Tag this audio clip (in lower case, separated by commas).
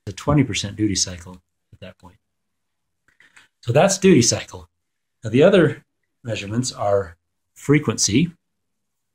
speech